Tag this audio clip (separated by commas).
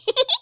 Laughter, Human voice, Giggle